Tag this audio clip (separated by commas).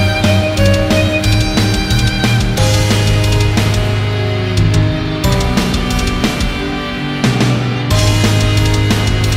Violin, Music, Musical instrument